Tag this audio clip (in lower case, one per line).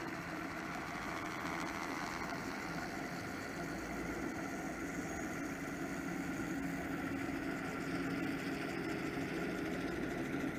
water vehicle
speedboat
vehicle